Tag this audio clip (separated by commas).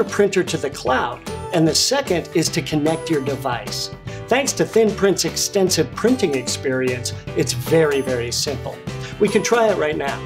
Music, Speech